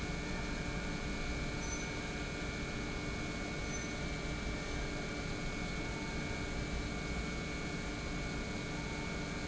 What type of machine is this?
pump